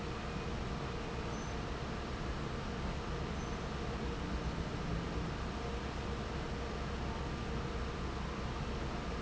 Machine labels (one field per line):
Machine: fan